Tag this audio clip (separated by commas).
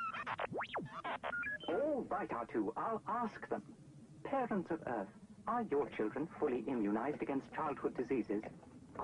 Speech